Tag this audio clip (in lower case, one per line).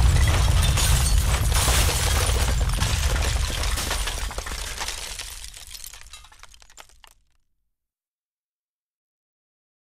sound effect